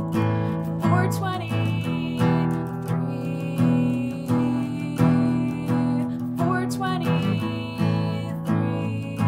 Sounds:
music

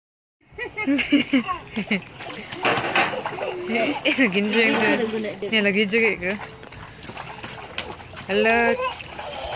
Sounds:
splashing water

